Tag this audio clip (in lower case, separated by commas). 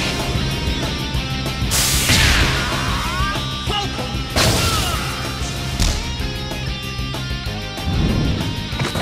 speech, music